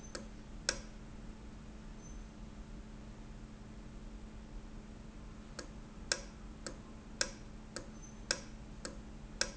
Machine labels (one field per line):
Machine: valve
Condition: normal